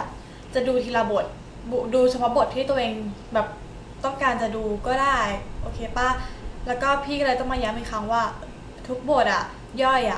A woman speaks quickly and continuously